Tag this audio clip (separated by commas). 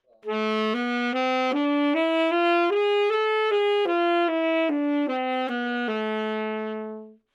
woodwind instrument, Musical instrument, Music